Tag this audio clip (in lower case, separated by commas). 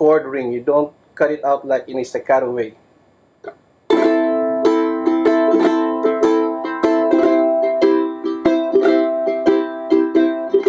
ukulele, guitar, inside a small room, musical instrument, music, speech